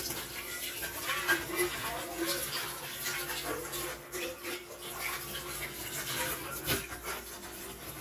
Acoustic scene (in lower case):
kitchen